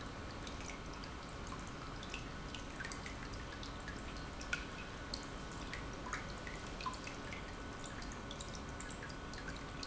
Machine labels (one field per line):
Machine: pump